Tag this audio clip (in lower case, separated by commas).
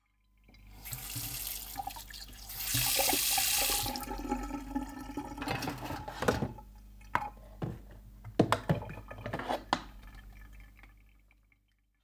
domestic sounds, faucet, sink (filling or washing)